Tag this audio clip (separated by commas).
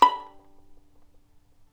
Bowed string instrument, Musical instrument, Music